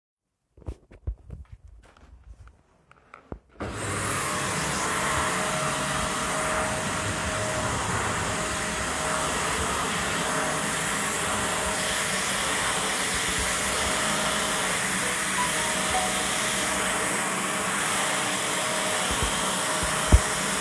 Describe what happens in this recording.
I was vacuuming and then a phone notification rang in the background while I was vacuuming